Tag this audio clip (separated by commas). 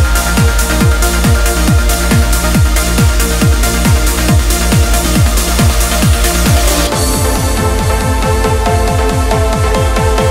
Trance music, Music